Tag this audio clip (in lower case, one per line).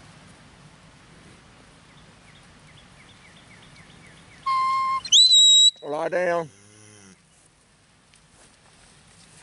animal
speech